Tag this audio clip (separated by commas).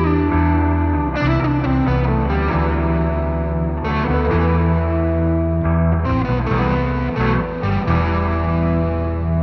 Music